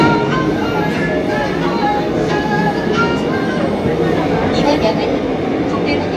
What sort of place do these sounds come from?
subway train